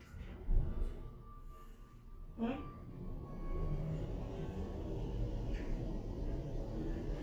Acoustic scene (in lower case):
elevator